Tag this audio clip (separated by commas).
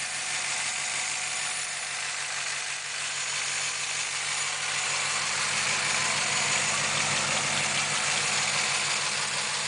Engine